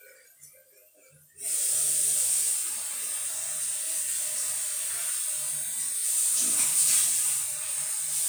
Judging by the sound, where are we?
in a restroom